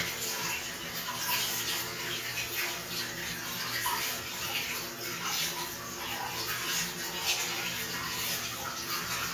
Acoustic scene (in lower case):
restroom